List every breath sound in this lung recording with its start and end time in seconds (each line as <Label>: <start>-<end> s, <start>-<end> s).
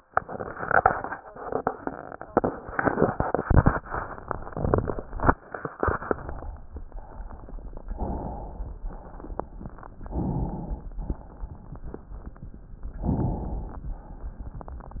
Inhalation: 5.76-6.58 s, 7.94-8.85 s, 10.06-10.91 s, 12.92-13.80 s
Exhalation: 6.56-7.51 s, 8.84-9.48 s, 10.92-11.66 s, 13.80-14.69 s